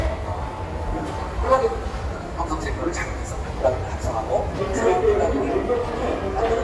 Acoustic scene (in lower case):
subway station